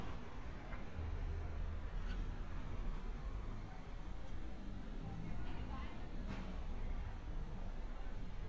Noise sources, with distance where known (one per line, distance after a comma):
unidentified human voice, far